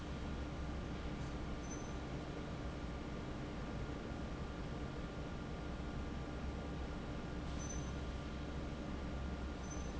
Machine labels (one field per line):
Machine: fan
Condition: normal